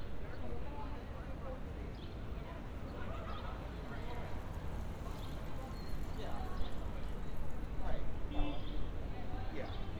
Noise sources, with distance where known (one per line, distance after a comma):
car horn
person or small group talking